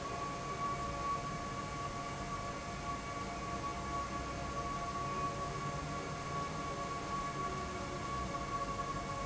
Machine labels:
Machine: fan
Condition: abnormal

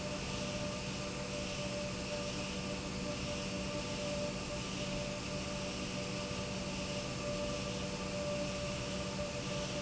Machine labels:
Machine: pump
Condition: normal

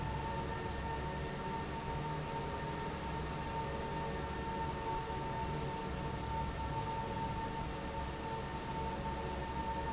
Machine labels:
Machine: fan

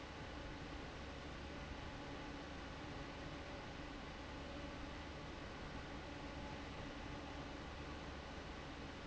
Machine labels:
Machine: fan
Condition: abnormal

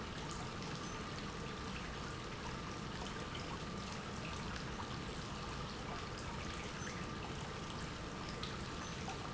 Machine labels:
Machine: pump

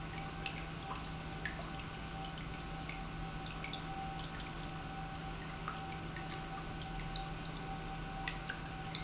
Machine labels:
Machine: pump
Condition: normal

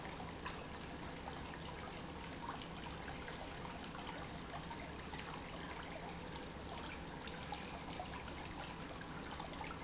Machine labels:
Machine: pump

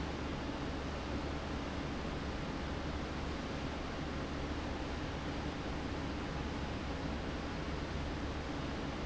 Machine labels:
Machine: fan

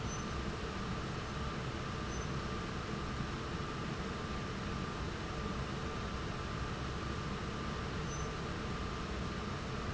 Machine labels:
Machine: fan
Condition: abnormal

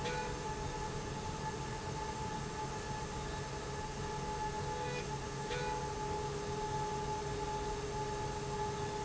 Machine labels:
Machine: slide rail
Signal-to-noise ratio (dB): -6 dB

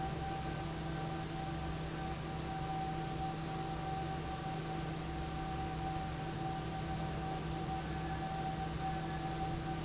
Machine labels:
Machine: fan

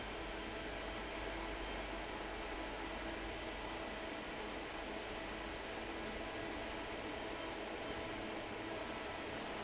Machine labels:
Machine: fan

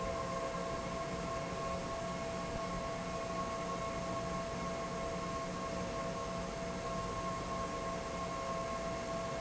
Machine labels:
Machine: fan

